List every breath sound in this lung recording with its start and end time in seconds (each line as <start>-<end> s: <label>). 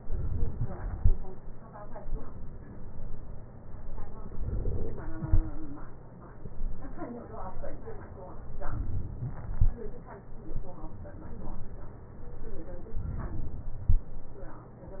13.00-13.84 s: inhalation